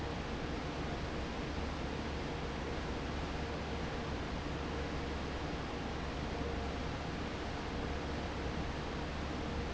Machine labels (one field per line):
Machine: fan